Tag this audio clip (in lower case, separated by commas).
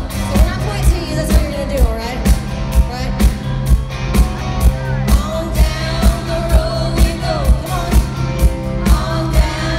exciting music, music, speech